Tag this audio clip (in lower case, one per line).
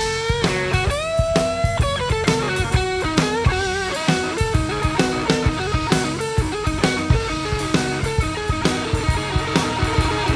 music
rock music
guitar
psychedelic rock
musical instrument